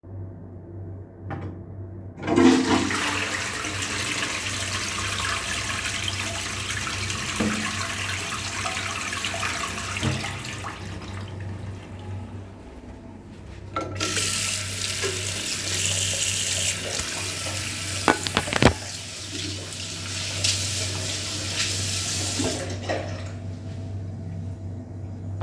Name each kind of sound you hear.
toilet flushing, running water